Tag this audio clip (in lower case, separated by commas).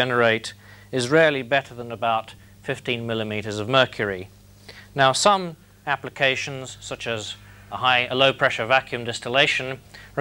speech